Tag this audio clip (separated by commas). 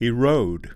Male speech, Human voice, Speech